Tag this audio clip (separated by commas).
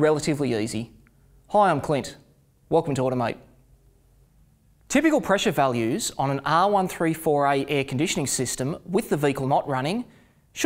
Speech